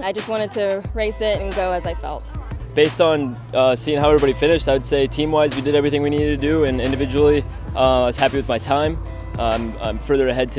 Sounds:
man speaking
speech
music
outside, urban or man-made

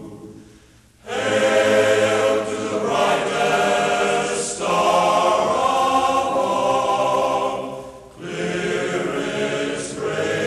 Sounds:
music

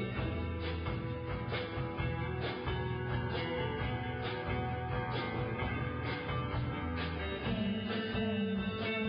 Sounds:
music

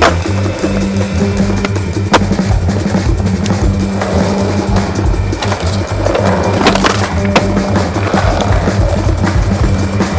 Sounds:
skateboarding

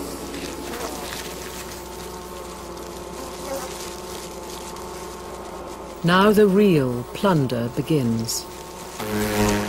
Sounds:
etc. buzzing

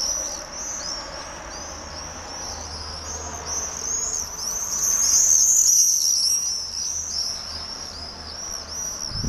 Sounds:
barn swallow calling

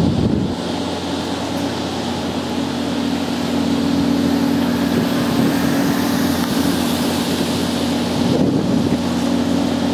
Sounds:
stream

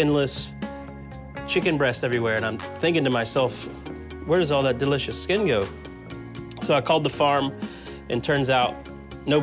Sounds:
music
speech

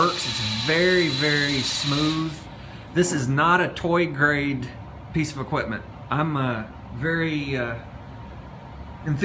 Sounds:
speech

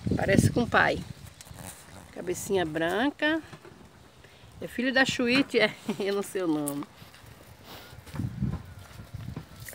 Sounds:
cattle mooing

